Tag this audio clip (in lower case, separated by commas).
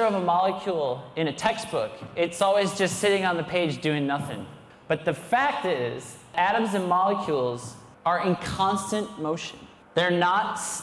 speech